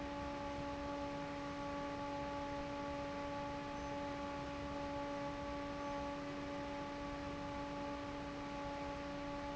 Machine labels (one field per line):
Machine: fan